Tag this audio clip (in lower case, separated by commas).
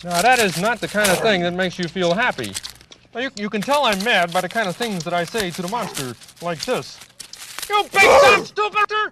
speech, animal